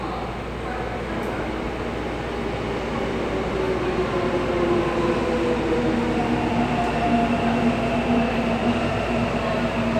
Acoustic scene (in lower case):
subway station